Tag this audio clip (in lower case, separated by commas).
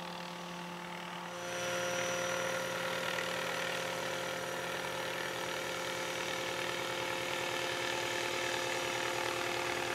vehicle, helicopter